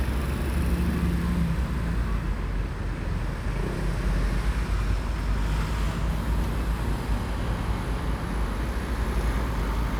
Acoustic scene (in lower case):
street